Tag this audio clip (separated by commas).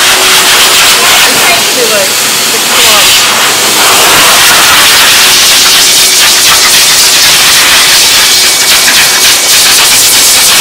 hair dryer drying